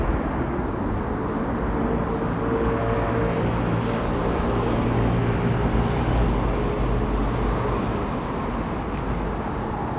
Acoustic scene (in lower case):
residential area